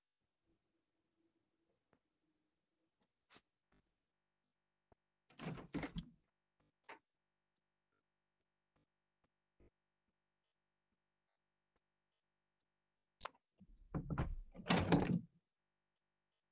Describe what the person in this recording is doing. I approached the closed window and proceeded to open it fully. After a brief pause I closed the window again. The recording captures the sounds of the window latch and frame movement.